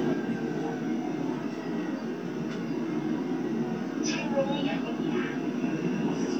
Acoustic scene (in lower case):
subway train